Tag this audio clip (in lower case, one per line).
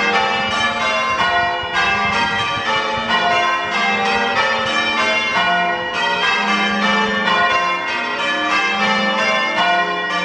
church bell ringing